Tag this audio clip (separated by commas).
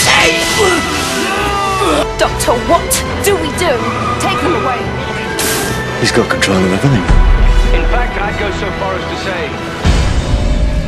Speech, Music